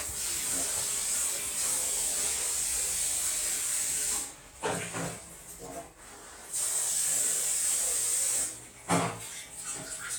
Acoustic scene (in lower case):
restroom